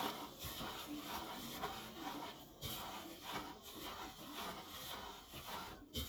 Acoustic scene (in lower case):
kitchen